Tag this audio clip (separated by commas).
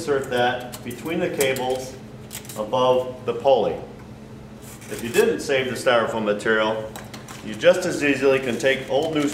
Speech